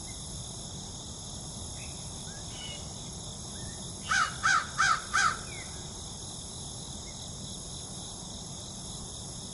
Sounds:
crow cawing

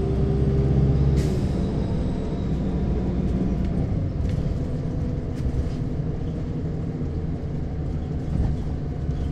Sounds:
driving buses, Vehicle, Bus

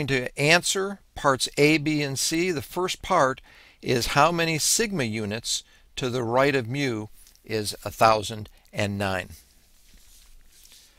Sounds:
Speech

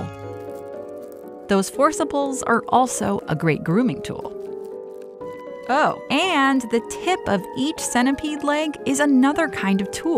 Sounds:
mosquito buzzing

